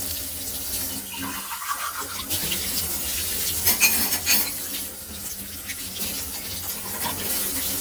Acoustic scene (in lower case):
kitchen